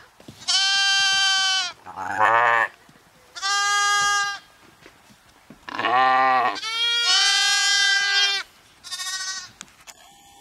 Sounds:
sheep bleating

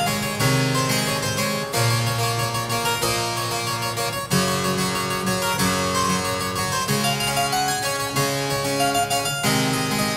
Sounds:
playing harpsichord

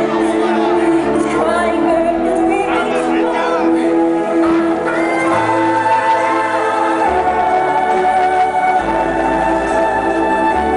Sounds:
Music, Musical instrument, Violin

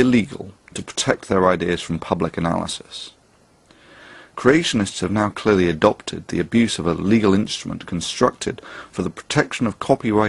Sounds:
monologue, Male speech, Speech

